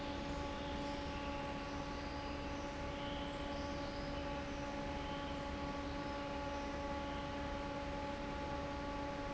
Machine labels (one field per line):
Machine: fan